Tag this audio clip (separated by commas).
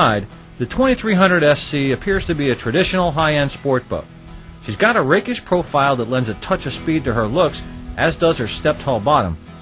Music, Speech